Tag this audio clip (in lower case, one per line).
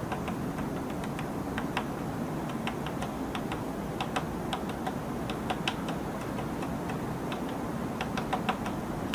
woodpecker pecking tree